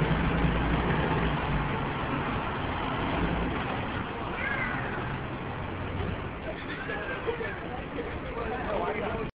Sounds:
vehicle, speech

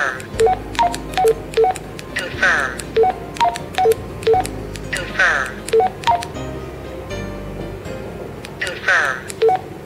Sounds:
dtmf, radio, speech, music

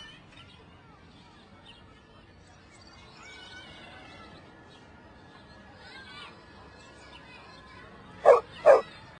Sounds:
bow-wow, dog, domestic animals, speech

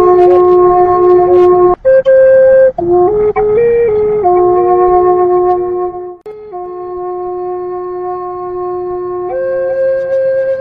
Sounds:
playing flute, music, flute

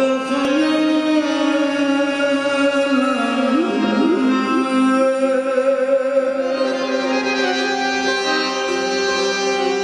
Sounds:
traditional music, music

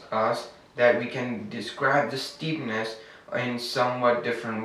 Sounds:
speech

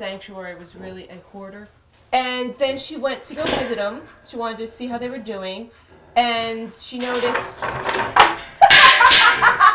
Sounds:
smack, animal, speech, pig

